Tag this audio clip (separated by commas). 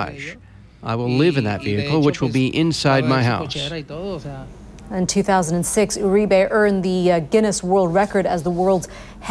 Speech